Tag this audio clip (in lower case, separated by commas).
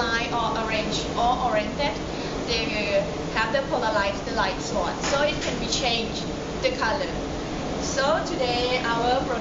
speech